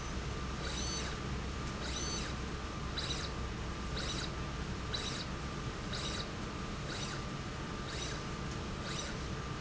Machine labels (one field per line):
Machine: slide rail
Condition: abnormal